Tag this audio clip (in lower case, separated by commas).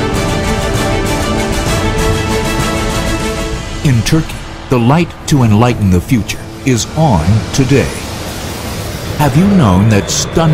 speech, music